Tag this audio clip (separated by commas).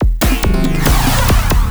Musical instrument, Percussion, Drum kit, Music